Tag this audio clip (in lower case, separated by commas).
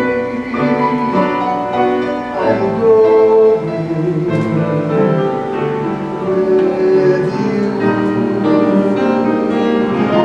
classical music